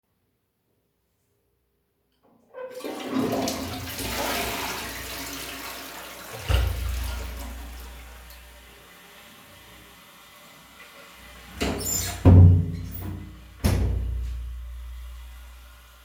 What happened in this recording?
I pressed the button to flush the toilet after using it. Once the water sound finished, some sound from the water motor appears. I grabbed the door handle and closed the bathroom door.